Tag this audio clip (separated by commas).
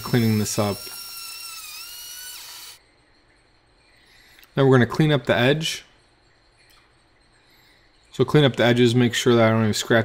inside a small room, Speech